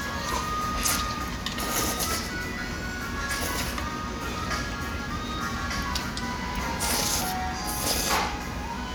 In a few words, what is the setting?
restaurant